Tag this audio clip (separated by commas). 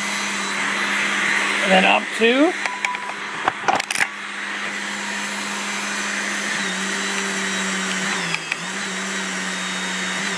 Tools